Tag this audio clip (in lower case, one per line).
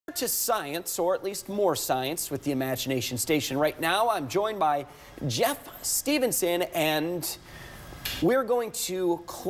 speech